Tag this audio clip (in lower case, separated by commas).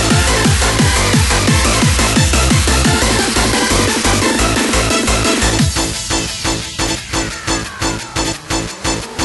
soundtrack music, music